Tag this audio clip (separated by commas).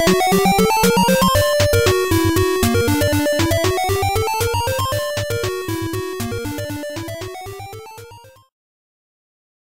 Jazz, Music